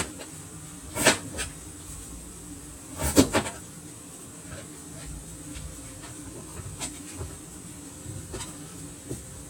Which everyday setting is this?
kitchen